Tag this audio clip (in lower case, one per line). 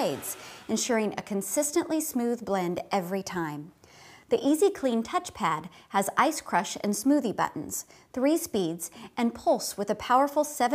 speech